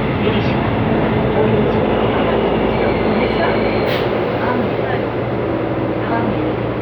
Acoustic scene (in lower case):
subway train